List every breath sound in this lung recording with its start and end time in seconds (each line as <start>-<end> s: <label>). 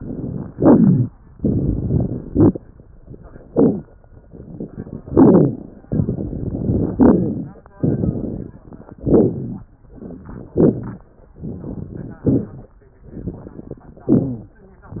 0.00-0.49 s: crackles
0.55-1.10 s: inhalation
0.55-1.10 s: crackles
1.37-2.28 s: crackles
1.40-2.30 s: exhalation
2.29-2.60 s: inhalation
2.29-2.60 s: crackles
3.00-3.47 s: exhalation
3.00-3.47 s: crackles
3.49-3.81 s: inhalation
3.49-3.81 s: crackles
4.20-5.10 s: crackles
4.21-5.09 s: exhalation
5.14-5.65 s: inhalation
5.14-5.65 s: crackles
5.88-6.92 s: exhalation
5.88-6.92 s: crackles
6.96-7.65 s: inhalation
6.96-7.65 s: crackles
7.82-9.01 s: exhalation
7.82-9.01 s: crackles
9.07-9.68 s: inhalation
9.07-9.68 s: crackles
9.87-10.55 s: exhalation
9.87-10.55 s: crackles
10.59-11.12 s: inhalation
10.59-11.12 s: crackles
11.42-12.24 s: exhalation
11.42-12.24 s: crackles
12.28-12.76 s: inhalation
12.28-12.76 s: crackles
13.13-14.08 s: exhalation
13.13-14.08 s: crackles
14.12-14.60 s: inhalation
14.12-14.60 s: rhonchi